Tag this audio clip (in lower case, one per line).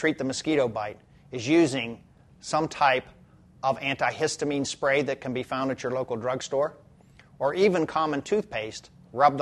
speech